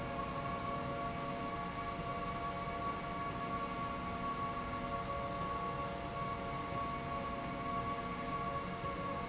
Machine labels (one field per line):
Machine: slide rail